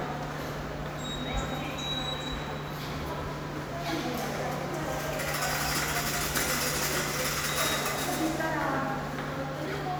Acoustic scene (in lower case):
subway station